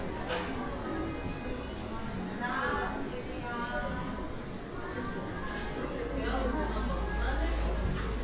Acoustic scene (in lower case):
cafe